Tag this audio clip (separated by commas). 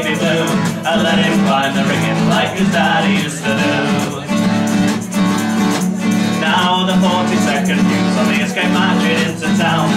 Music